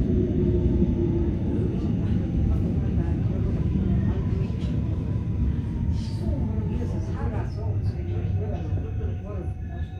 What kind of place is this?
subway train